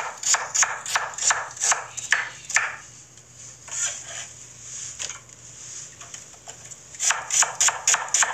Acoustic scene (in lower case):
kitchen